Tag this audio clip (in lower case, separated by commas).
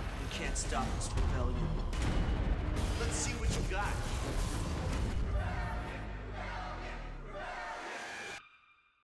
music, speech